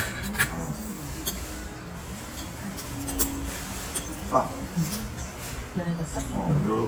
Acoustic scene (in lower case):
restaurant